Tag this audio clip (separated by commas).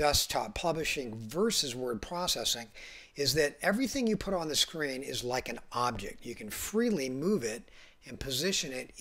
Speech